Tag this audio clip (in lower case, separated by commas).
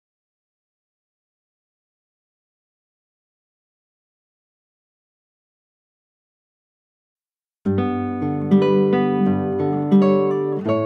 musical instrument, plucked string instrument, guitar, acoustic guitar, music